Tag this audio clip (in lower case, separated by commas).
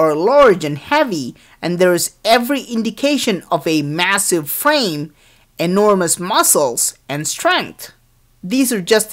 monologue, speech